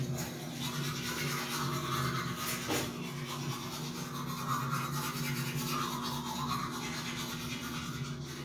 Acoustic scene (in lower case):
restroom